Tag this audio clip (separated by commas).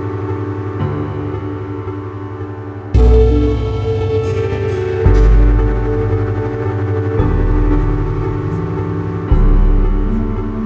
Music